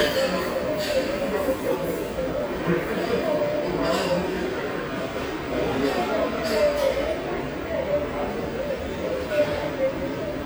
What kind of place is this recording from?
restaurant